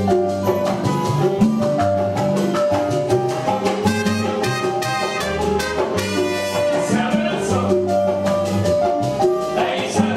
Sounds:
Music, Dance music

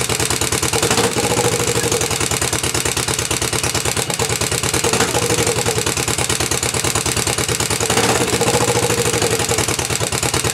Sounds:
Idling

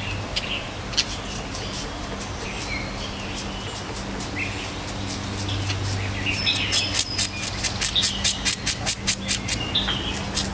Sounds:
tweet, Bird, Bird vocalization

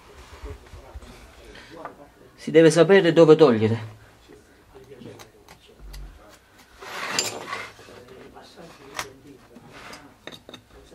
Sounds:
Speech, Wood

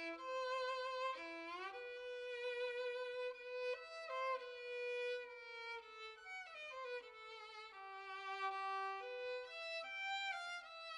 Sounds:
Violin, Music, Musical instrument

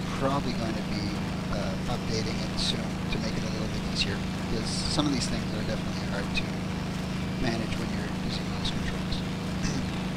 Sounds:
Speech

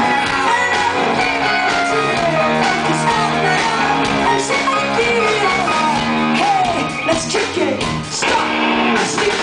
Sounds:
Music

